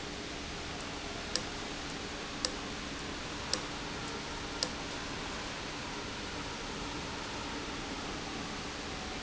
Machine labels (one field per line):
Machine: valve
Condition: abnormal